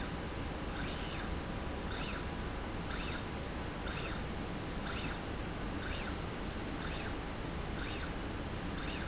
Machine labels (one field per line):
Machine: slide rail